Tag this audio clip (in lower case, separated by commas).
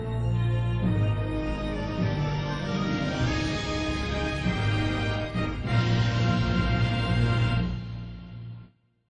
music